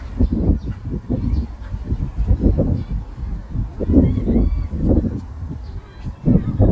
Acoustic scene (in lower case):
park